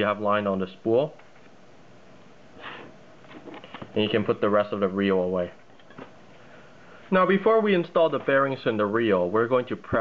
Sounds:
Speech

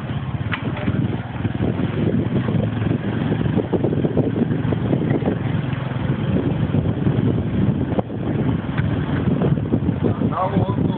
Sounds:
outside, urban or man-made

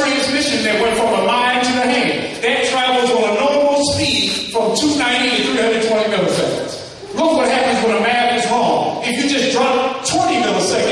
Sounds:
Speech, Male speech

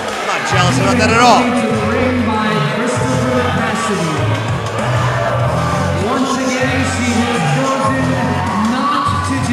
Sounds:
Music, Speech

